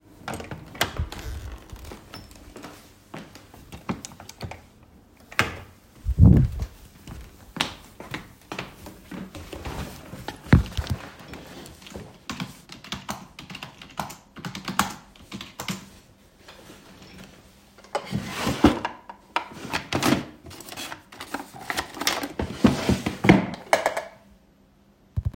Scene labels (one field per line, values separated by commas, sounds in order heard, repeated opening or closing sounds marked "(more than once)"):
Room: office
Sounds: door (more than once), footsteps, keyboard typing, wardrobe or drawer (more than once)